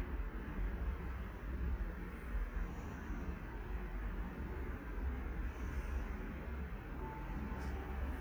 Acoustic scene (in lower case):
elevator